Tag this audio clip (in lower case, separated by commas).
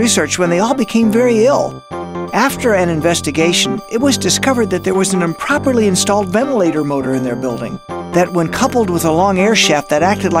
speech, music